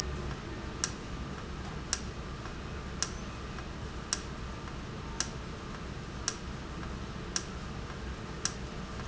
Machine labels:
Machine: valve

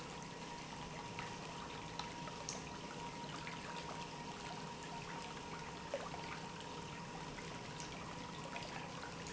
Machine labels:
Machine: pump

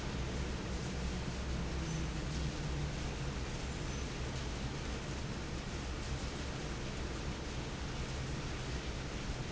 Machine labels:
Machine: fan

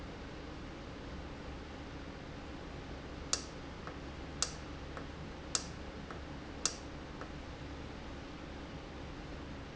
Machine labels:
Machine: valve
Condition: normal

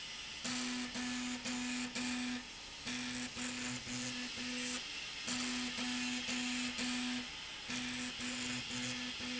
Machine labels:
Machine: slide rail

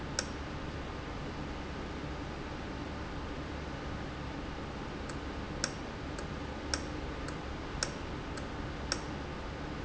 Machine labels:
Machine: valve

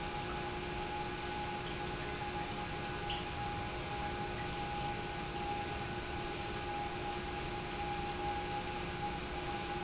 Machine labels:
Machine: pump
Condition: normal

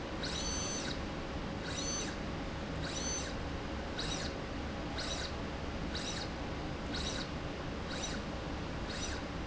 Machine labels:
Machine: slide rail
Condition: abnormal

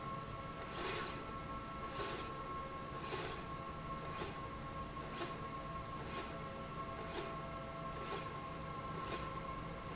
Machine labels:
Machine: slide rail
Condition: normal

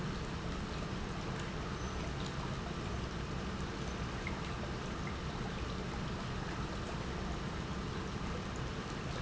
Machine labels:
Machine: pump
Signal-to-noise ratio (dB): -6 dB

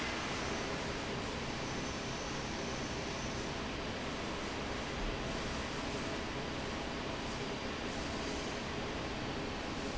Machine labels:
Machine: fan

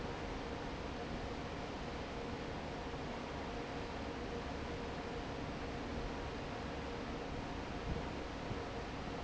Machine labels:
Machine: fan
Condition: normal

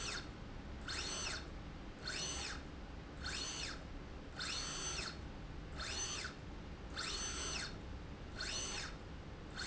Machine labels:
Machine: slide rail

